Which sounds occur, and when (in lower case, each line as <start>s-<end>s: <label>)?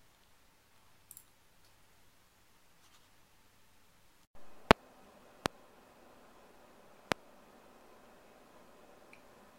0.0s-4.2s: wind
0.1s-0.3s: tick
1.0s-1.2s: tick
1.6s-1.8s: tick
2.7s-3.0s: tick
4.3s-9.5s: wind
4.6s-4.8s: tick
5.4s-5.5s: tick
7.0s-7.2s: tick
9.1s-9.2s: tick